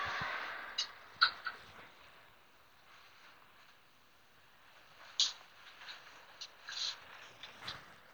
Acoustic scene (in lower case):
elevator